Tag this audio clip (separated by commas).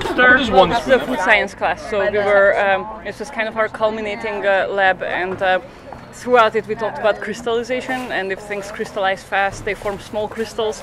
Speech